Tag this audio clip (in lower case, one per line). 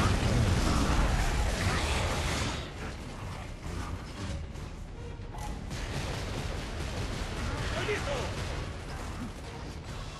speech